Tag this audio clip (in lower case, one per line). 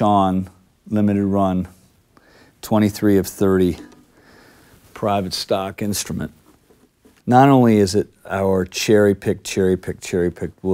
speech